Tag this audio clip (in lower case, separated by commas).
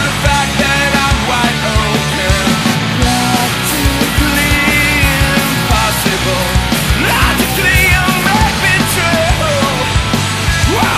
music